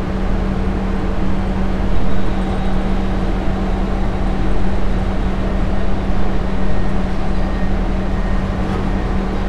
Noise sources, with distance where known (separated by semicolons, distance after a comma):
large-sounding engine, near